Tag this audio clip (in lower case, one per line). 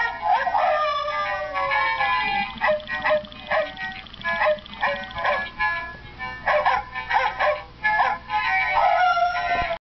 howl
bow-wow
music